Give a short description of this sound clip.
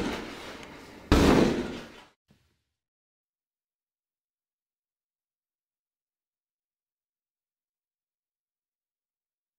A door being slammed into